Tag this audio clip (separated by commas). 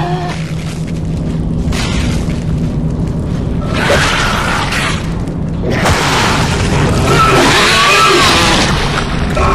Music